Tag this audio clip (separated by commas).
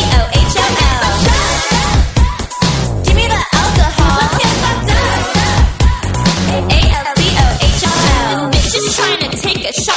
Music